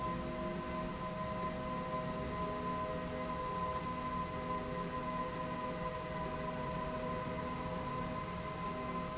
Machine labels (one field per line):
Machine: slide rail